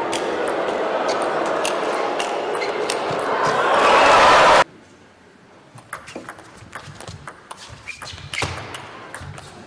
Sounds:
playing table tennis

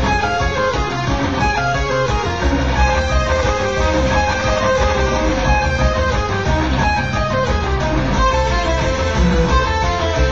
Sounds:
Music, Guitar

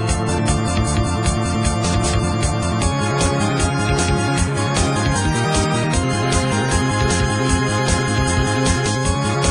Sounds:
Music

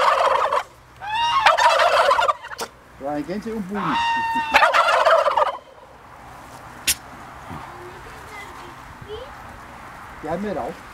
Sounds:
turkey gobbling

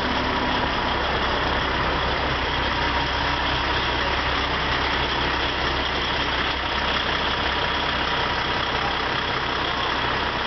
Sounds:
Vehicle, Truck

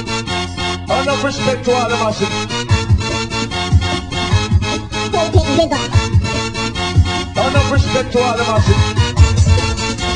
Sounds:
Speech, Roll, Music

